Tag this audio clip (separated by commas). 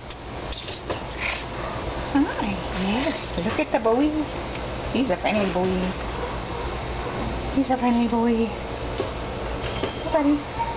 Speech